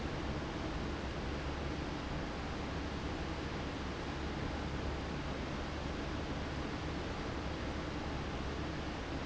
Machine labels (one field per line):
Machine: fan